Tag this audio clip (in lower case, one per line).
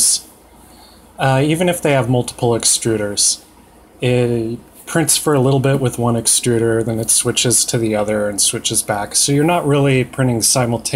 speech